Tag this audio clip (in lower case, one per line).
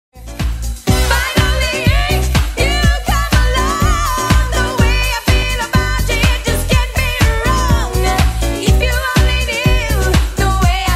funk
disco